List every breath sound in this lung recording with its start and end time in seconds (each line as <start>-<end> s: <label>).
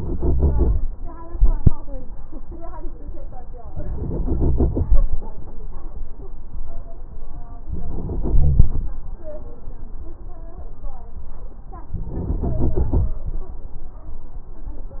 3.68-4.89 s: inhalation
7.66-8.99 s: inhalation
8.36-8.73 s: wheeze
11.94-13.23 s: inhalation